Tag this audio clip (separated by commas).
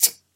Tick